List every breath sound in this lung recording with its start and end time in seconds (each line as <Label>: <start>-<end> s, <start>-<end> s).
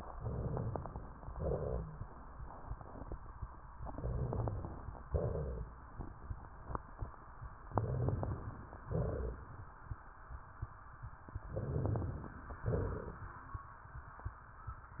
Inhalation: 0.17-1.18 s, 3.75-5.05 s, 7.72-8.88 s, 11.49-12.43 s
Exhalation: 1.35-2.35 s, 5.11-5.84 s, 8.82-9.85 s, 12.64-13.52 s
Wheeze: 1.35-2.04 s, 5.11-5.84 s
Rhonchi: 3.75-5.05 s, 7.71-8.53 s, 8.82-9.49 s
Crackles: 0.17-1.18 s, 11.49-12.43 s